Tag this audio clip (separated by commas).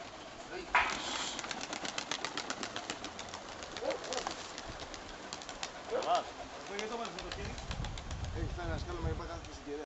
outside, rural or natural, Speech, dove, Bird